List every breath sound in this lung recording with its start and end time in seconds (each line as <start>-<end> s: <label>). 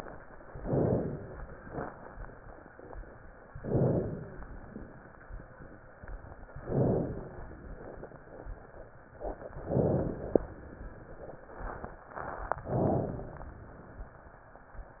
0.51-1.35 s: inhalation
3.61-4.44 s: inhalation
6.62-7.46 s: inhalation
9.70-10.53 s: inhalation
12.68-13.51 s: inhalation